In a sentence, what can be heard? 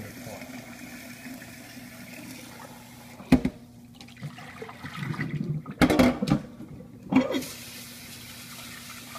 Water running followed by clatter splashing water and some clanking then more running water